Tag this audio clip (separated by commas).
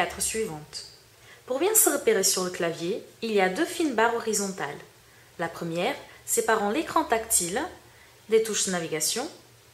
Speech